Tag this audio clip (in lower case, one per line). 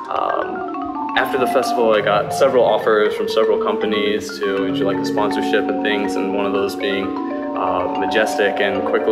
music
speech
percussion